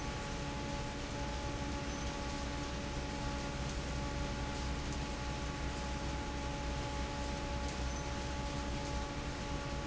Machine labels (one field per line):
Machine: fan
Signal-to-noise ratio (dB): -6 dB